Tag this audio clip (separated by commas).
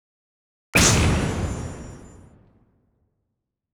Boom, Explosion